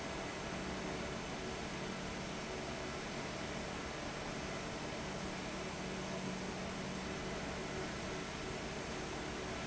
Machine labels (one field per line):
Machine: fan